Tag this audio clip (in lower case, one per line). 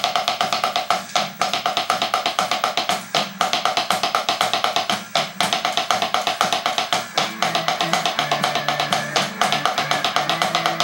percussion
wood block